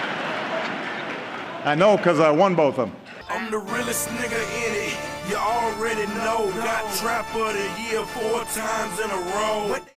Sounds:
music
speech

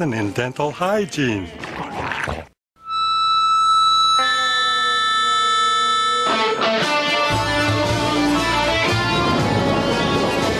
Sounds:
speech
music
electric guitar

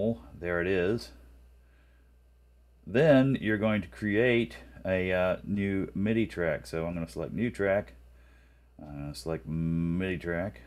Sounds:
speech

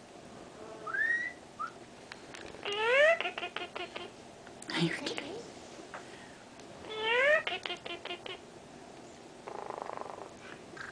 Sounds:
speech
animal
bird

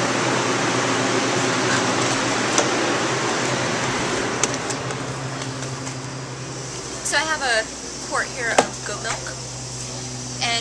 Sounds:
speech

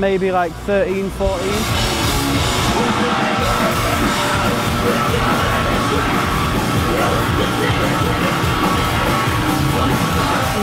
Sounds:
speech
music

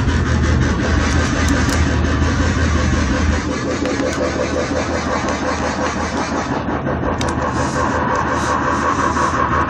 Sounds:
dubstep
music
electronic music

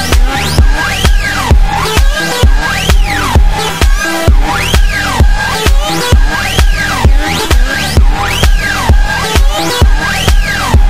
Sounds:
music

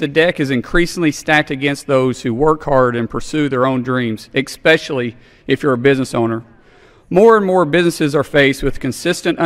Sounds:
narration
male speech
speech

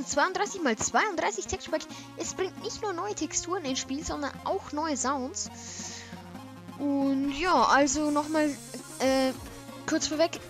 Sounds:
music
speech

